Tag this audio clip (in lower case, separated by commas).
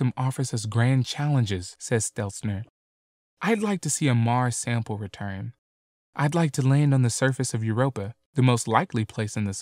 speech